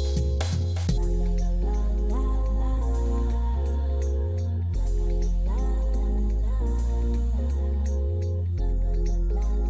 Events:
[0.00, 9.65] music
[0.87, 4.01] singing
[4.69, 7.84] singing
[8.47, 9.65] singing

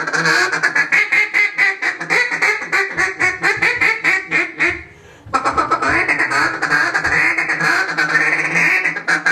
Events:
[0.00, 9.31] background noise
[4.80, 5.30] breathing
[5.20, 9.31] quack
[5.28, 7.15] thump

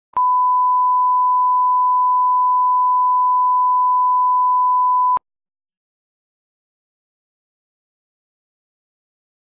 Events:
[0.10, 5.20] sine wave

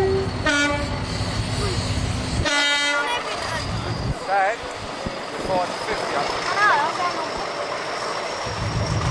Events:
[0.00, 9.10] train
[0.41, 0.81] train horn
[1.34, 1.73] human sounds
[2.41, 3.14] train horn
[2.96, 3.66] kid speaking
[4.17, 4.61] male speech
[5.37, 6.44] male speech
[6.40, 7.33] kid speaking

